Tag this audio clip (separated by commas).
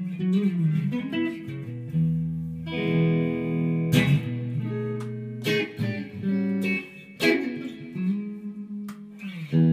Guitar, Bowed string instrument, Musical instrument, Music, Plucked string instrument, Electric guitar, playing electric guitar